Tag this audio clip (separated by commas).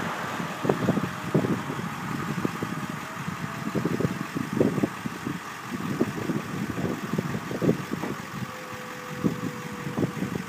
Truck, Vehicle